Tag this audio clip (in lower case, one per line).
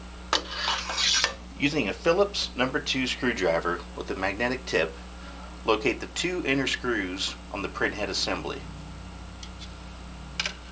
speech